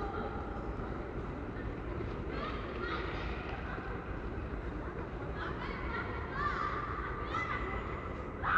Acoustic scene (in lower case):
residential area